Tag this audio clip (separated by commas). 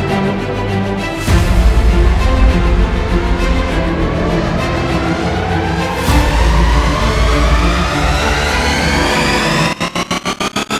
Music